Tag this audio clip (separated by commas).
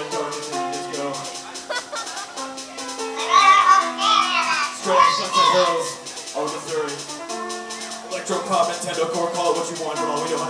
Electronic music, Speech, Music